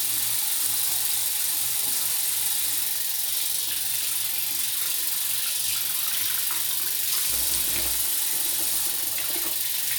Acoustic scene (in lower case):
restroom